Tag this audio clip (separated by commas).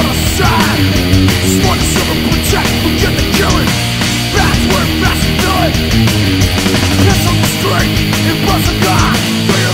Music